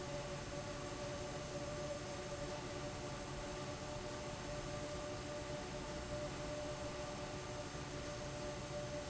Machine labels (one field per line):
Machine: fan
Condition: abnormal